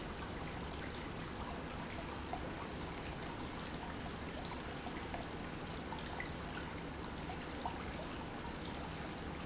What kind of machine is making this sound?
pump